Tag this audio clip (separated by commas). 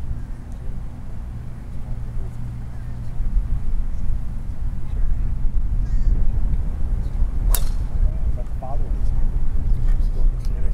golf driving